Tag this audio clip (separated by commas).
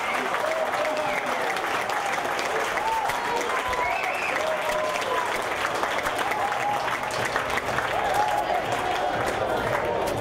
Speech, Run